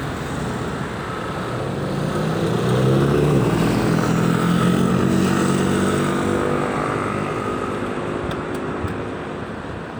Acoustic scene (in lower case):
street